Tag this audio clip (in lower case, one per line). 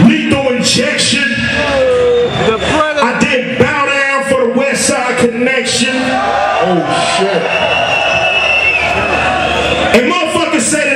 speech